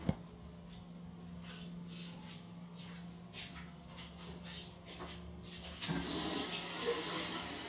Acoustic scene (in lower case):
restroom